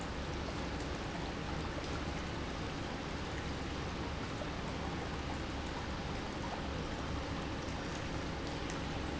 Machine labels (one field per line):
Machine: pump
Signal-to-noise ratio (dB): -6 dB